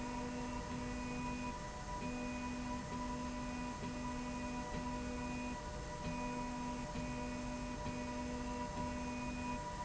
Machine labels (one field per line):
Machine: slide rail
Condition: normal